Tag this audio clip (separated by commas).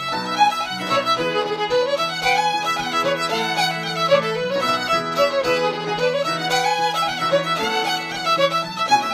Musical instrument, Music, Violin